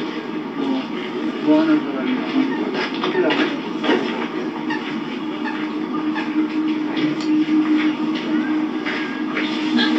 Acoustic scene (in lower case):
park